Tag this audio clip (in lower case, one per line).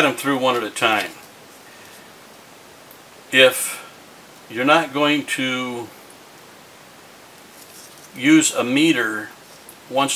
speech
inside a small room